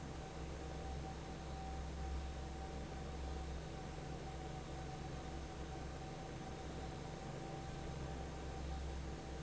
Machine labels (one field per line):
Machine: fan